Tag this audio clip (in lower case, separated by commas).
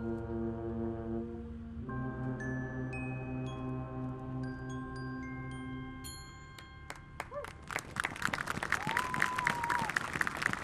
music, outside, urban or man-made